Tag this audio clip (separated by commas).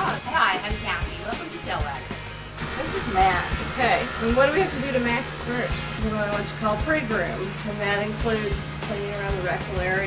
Music, Speech